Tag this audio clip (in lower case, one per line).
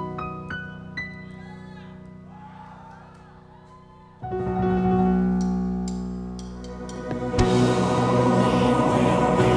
singing